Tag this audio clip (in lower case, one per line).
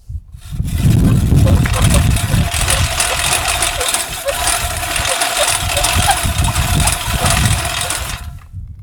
engine